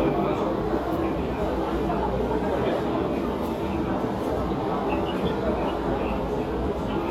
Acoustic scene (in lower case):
crowded indoor space